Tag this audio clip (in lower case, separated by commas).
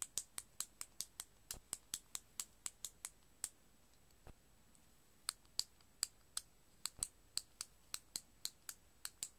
tick